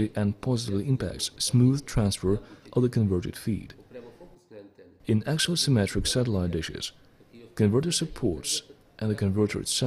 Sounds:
speech

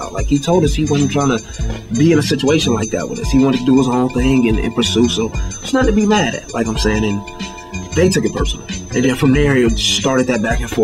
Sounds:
speech

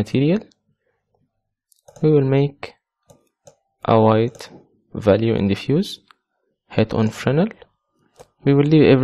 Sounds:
speech

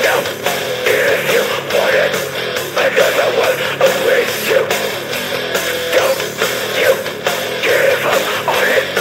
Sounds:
music

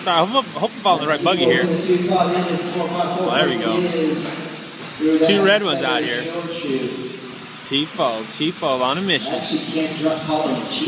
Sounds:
speech

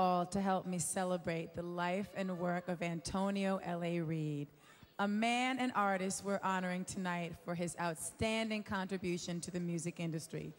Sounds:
speech

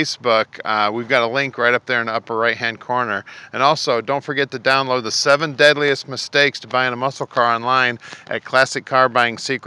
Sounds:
speech

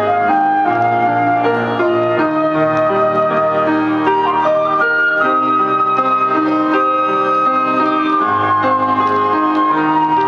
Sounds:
music

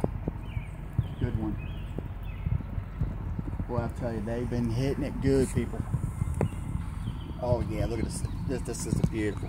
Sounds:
speech

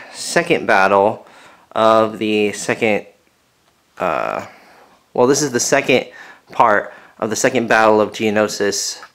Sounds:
speech

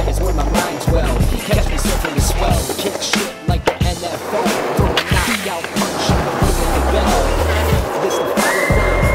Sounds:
skateboard
music

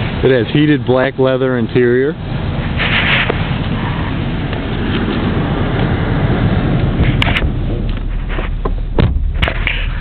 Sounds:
outside, urban or man-made
car
speech
vehicle

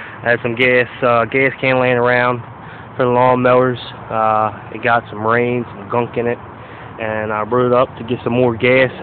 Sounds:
speech

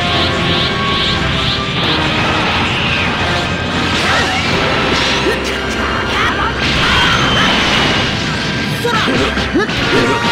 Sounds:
music

